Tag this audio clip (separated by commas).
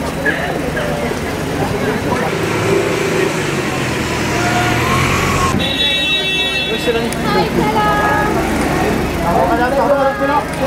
Car